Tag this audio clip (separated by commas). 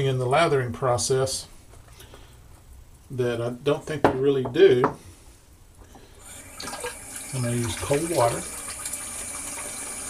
Water, faucet